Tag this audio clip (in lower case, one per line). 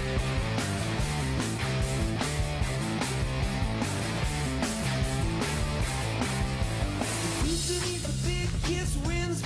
music